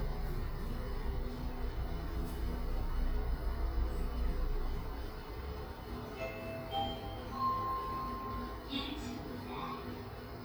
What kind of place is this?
elevator